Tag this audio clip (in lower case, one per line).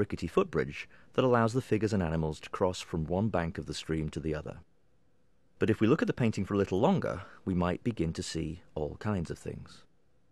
speech